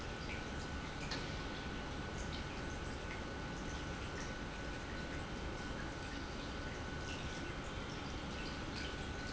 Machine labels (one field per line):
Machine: pump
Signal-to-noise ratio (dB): 0 dB